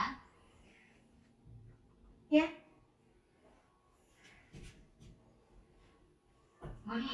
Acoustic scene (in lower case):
elevator